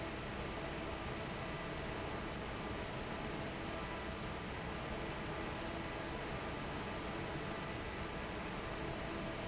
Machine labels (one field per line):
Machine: fan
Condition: normal